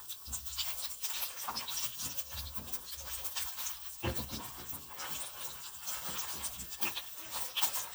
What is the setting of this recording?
kitchen